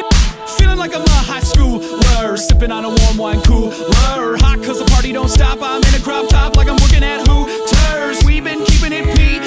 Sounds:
music

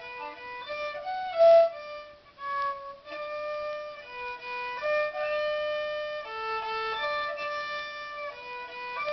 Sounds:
music, fiddle, musical instrument

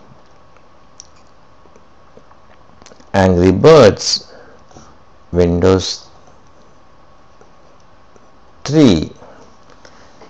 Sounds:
speech

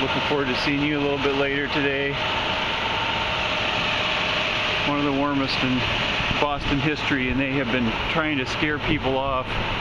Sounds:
speech, outside, urban or man-made

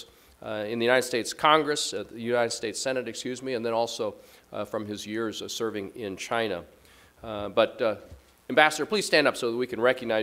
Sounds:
speech, male speech, monologue

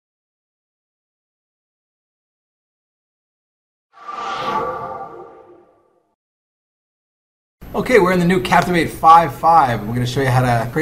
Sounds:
speech

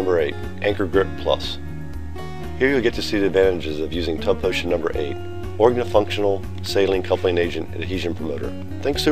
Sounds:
music, speech

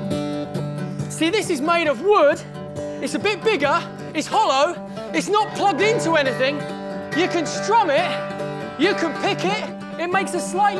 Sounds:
speech, music

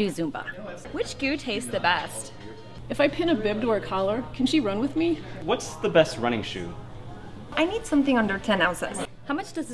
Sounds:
speech, inside a public space, music

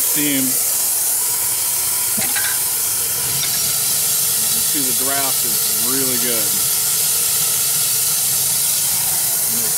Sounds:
hiss, steam

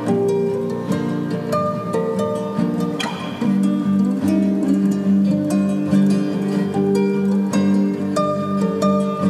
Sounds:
music

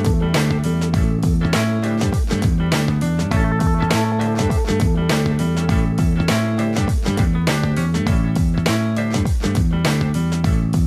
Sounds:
music

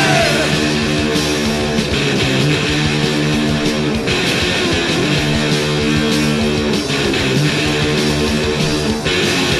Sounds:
music

